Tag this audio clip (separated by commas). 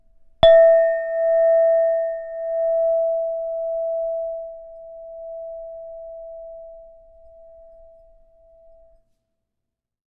Chink, Glass